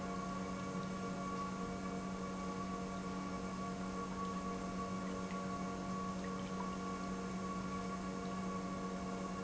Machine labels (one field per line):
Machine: pump